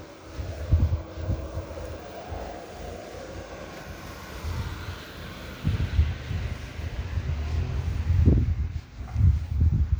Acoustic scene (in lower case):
residential area